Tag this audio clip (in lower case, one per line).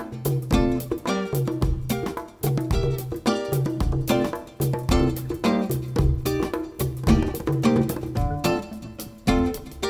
music